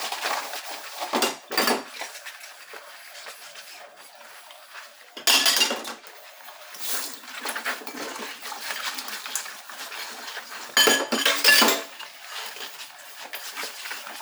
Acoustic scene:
kitchen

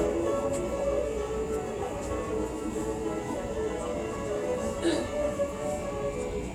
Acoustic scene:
subway train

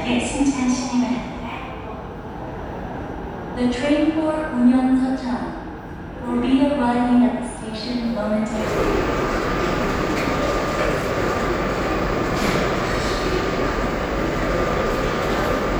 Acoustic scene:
subway station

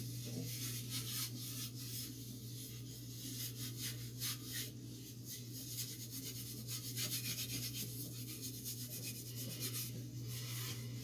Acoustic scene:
kitchen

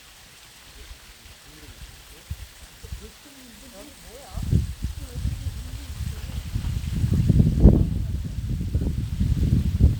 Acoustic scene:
park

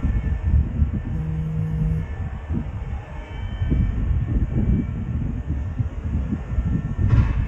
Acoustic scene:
residential area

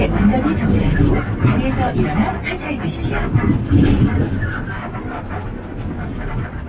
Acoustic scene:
bus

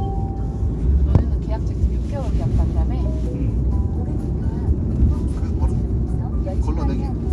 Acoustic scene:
car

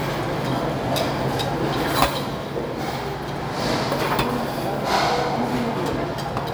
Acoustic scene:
restaurant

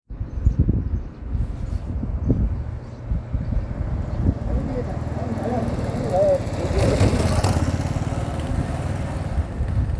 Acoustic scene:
residential area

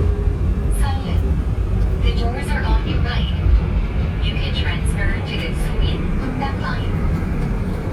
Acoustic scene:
subway train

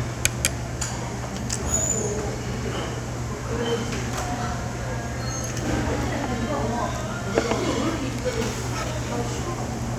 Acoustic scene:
restaurant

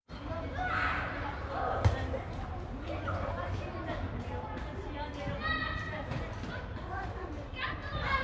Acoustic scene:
residential area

